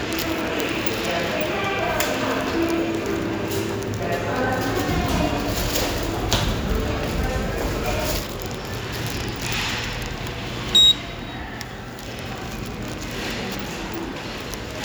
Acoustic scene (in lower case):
subway station